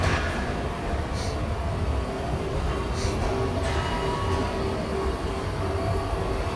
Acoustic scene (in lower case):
subway station